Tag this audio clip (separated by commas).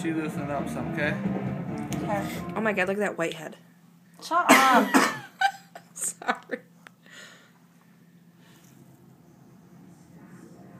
inside a small room, Speech, Music